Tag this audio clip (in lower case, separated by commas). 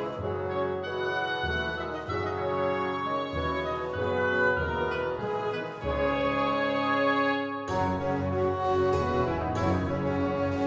music, tender music